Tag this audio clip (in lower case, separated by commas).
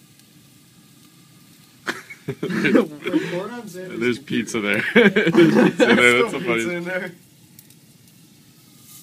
speech